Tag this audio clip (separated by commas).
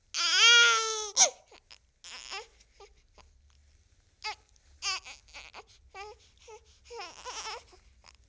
sobbing, Human voice